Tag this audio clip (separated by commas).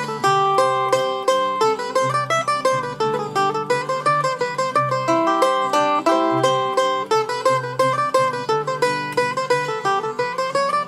Music, Mandolin